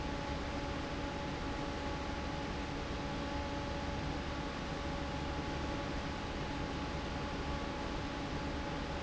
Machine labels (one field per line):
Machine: fan